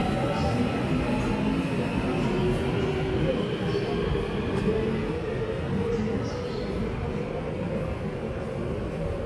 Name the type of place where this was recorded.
subway station